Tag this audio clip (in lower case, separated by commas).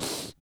respiratory sounds, breathing